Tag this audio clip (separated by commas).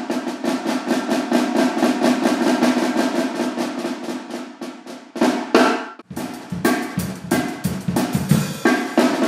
Cymbal, Hi-hat